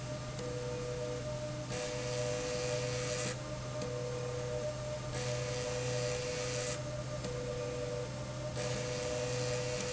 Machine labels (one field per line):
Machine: slide rail